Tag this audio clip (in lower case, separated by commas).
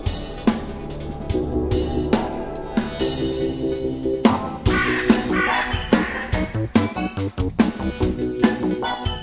cymbal, musical instrument, percussion, music, drum, hi-hat, drum kit